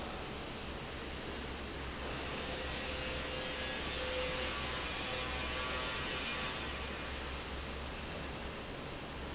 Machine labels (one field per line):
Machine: fan